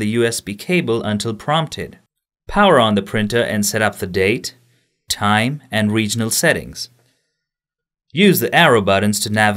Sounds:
Speech

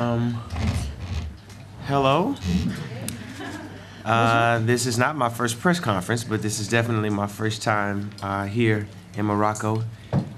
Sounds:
Speech

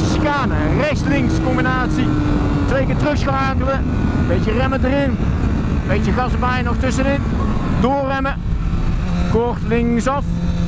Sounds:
Speech, Vehicle

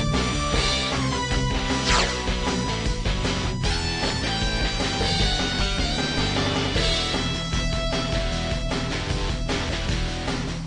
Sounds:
Music

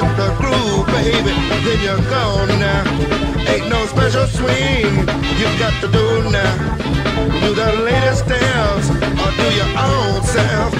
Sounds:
Soundtrack music, Background music, Music

